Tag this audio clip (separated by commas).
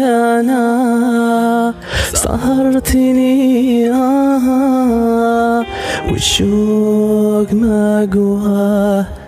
Music